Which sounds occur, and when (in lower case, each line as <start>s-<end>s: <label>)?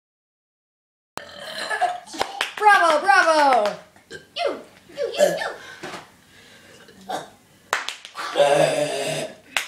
1.2s-9.6s: background noise
1.2s-2.0s: burping
1.7s-2.0s: laughter
2.1s-3.0s: clapping
2.6s-3.8s: child speech
3.2s-3.8s: clapping
4.1s-4.3s: burping
4.3s-4.6s: child speech
4.9s-5.6s: child speech
5.6s-5.8s: breathing
5.8s-6.1s: generic impact sounds
6.3s-6.6s: breathing
6.7s-6.9s: burping
7.0s-7.2s: burping
7.4s-7.7s: breathing
7.7s-8.2s: clapping
8.2s-9.4s: burping